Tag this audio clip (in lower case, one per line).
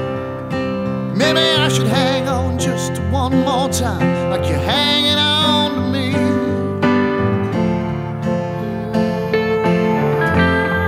music